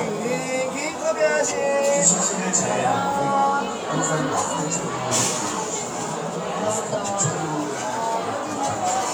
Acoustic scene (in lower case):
cafe